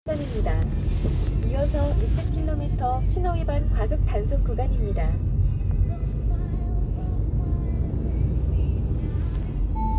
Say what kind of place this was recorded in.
car